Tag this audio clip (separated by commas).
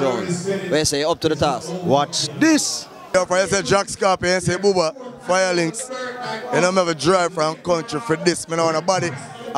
Speech